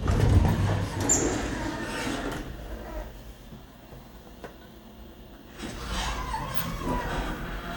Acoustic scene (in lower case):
elevator